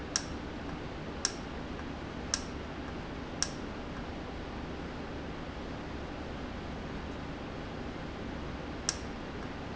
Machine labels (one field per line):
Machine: valve